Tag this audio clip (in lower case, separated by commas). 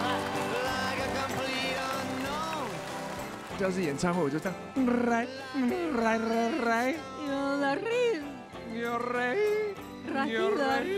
yodelling